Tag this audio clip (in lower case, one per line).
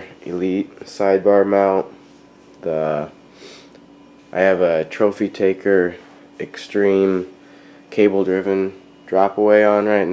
speech